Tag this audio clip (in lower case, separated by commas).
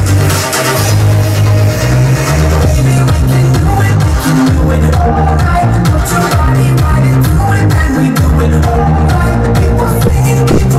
jazz, music